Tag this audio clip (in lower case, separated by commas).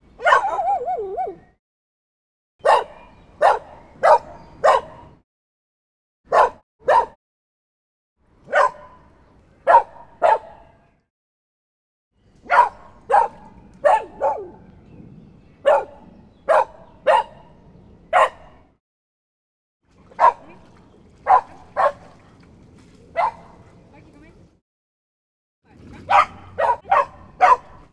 pets, bark, animal, dog